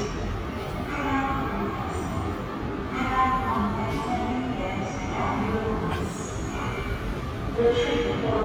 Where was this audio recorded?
in a subway station